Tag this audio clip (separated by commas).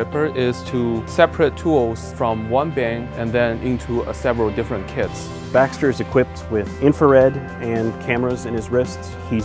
Speech, Music